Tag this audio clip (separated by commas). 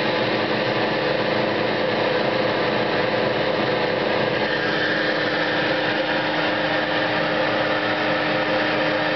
Engine